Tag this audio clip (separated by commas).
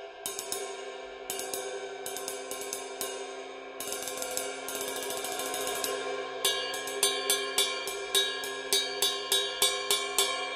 playing cymbal, Cymbal, Hi-hat